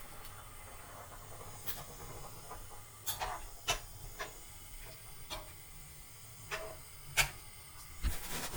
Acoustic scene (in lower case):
kitchen